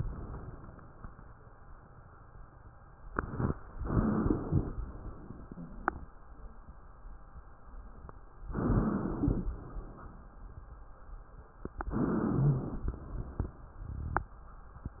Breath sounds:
3.78-4.73 s: inhalation
3.94-4.23 s: wheeze
4.77-6.08 s: exhalation
5.54-5.70 s: wheeze
8.54-9.46 s: inhalation
9.49-10.48 s: exhalation
11.92-12.90 s: inhalation
12.38-12.62 s: wheeze
12.91-14.32 s: exhalation

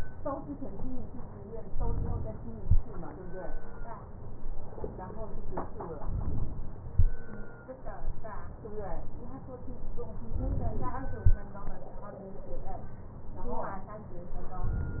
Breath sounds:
6.00-6.95 s: inhalation
10.27-11.22 s: inhalation

